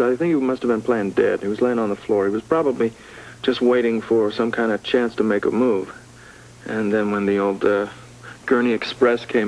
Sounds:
speech

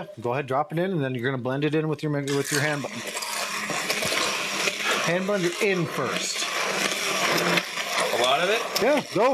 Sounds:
speech

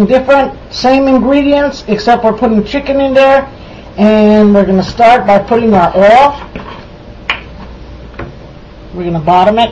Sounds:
speech

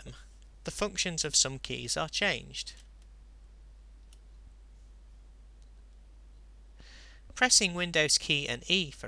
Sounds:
speech, computer keyboard

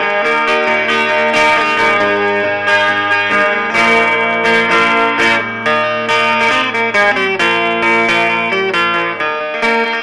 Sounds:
music, electric guitar, plucked string instrument, musical instrument, strum, guitar

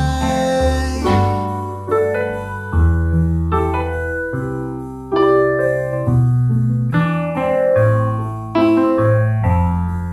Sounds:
music, keyboard (musical), electric piano

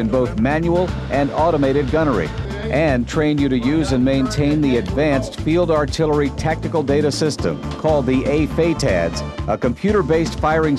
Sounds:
speech, inside a large room or hall, music

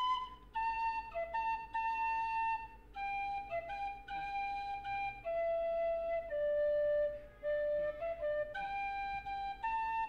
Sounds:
music

